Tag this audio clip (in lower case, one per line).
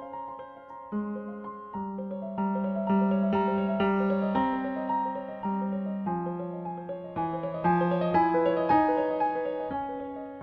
music